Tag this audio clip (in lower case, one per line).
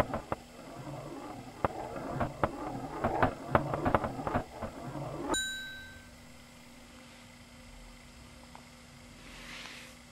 inside a small room